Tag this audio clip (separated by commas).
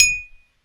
clink, Glass